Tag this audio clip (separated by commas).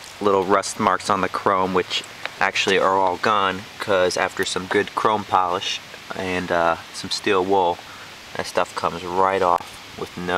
Speech